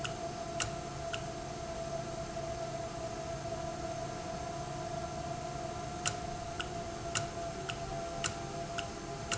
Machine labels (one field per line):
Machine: valve